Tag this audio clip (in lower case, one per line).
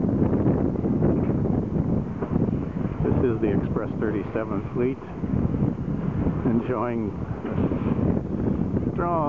speech
vehicle
water vehicle